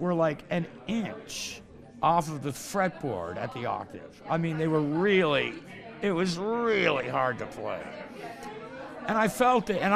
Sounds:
crowd

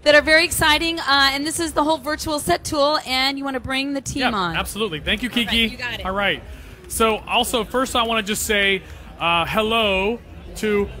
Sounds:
speech

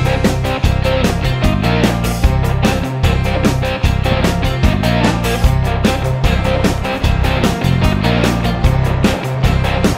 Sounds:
music

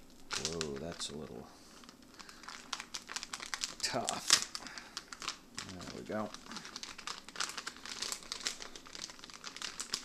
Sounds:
crinkling
inside a small room
speech

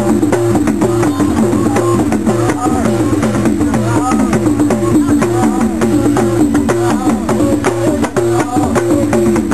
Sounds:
folk music
music

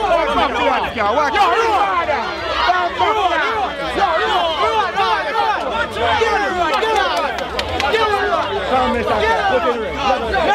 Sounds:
speech

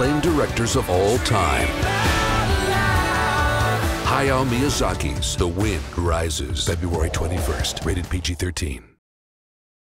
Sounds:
music
speech

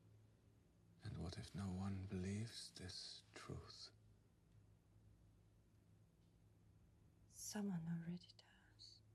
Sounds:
speech
whispering

